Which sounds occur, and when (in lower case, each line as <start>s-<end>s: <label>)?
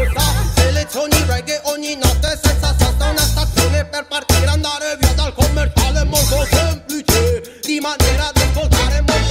0.0s-7.4s: male singing
0.0s-9.3s: music
7.4s-7.6s: breathing
7.6s-9.3s: male singing